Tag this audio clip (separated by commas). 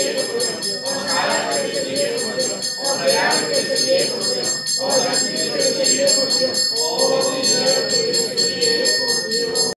Mantra